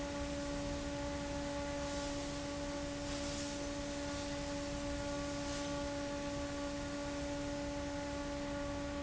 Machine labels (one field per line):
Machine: fan